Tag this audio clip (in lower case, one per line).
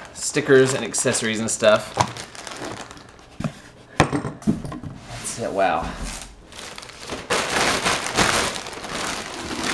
crackle